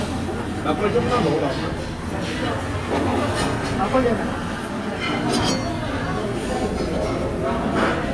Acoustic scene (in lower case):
crowded indoor space